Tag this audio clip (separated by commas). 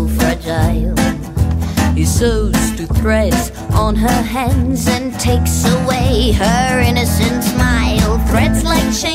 Music